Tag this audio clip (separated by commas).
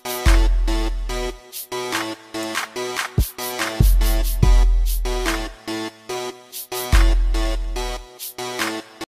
Soundtrack music, Music